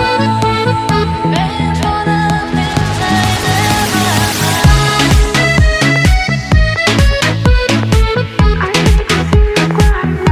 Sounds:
music

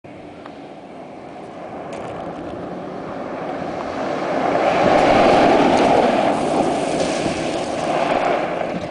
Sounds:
vehicle, car

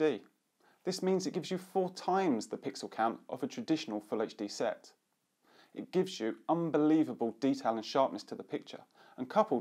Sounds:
speech

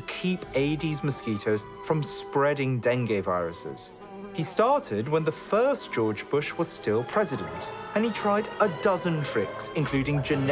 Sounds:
mosquito buzzing

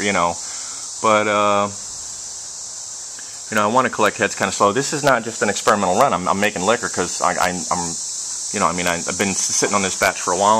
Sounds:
speech, inside a small room

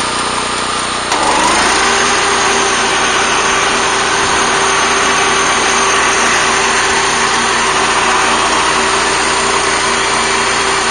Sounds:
outside, rural or natural

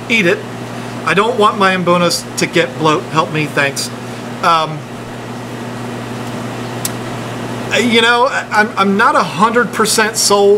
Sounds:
inside a large room or hall, speech

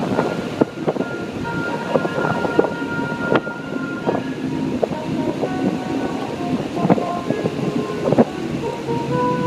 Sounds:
music, car, vehicle, outside, rural or natural

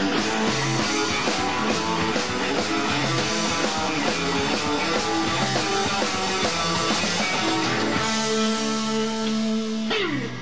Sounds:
music

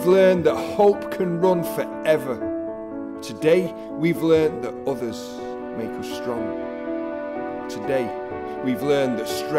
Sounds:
speech, music

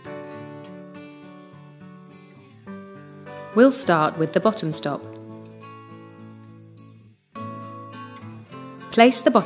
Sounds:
music, speech

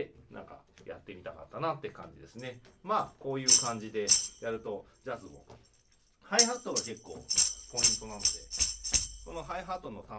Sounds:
playing tambourine

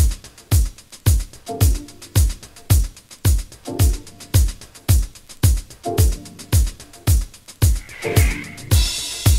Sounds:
music

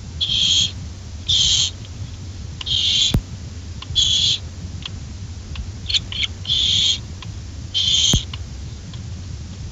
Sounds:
owl, animal

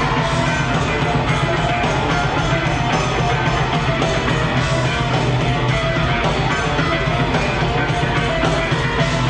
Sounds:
roll, music

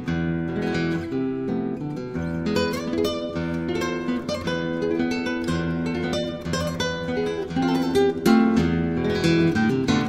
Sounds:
acoustic guitar, music, guitar, musical instrument, harp, plucked string instrument

